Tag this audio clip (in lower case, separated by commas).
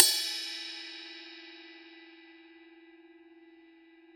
cymbal, music, percussion, crash cymbal, musical instrument